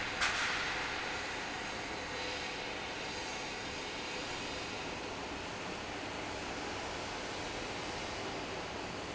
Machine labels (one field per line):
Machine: fan